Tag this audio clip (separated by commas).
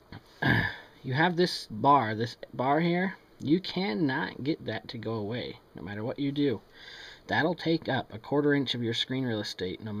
Speech